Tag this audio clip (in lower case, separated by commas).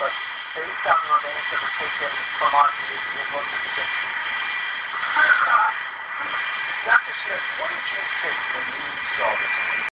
speech